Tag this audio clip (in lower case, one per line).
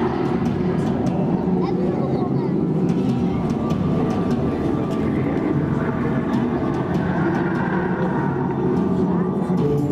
music
speech